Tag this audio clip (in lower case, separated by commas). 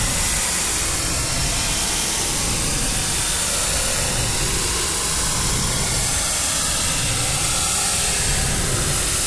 sizzle